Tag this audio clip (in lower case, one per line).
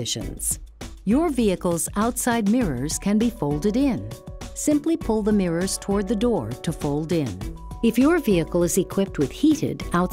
music
speech